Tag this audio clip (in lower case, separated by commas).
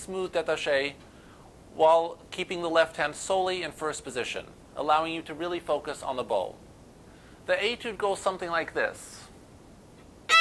speech